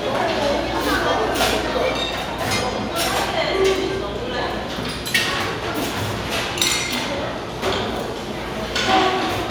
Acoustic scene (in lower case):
restaurant